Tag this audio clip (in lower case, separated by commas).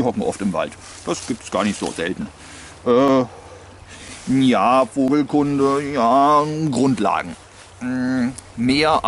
speech, outside, rural or natural